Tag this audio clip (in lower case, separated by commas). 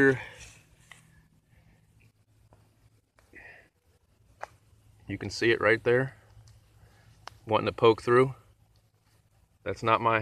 speech